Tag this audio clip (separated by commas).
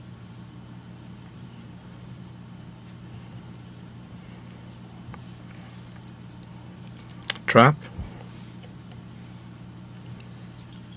Speech